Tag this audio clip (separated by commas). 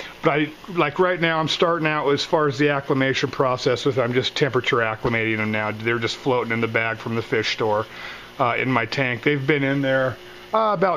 Speech